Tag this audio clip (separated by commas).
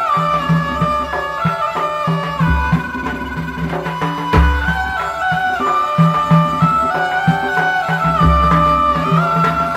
Music, Folk music